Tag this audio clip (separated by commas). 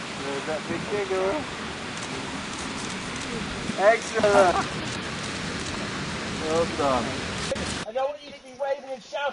Rain on surface, Speech